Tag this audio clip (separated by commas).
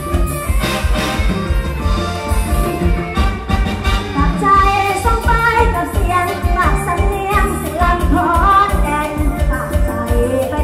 Music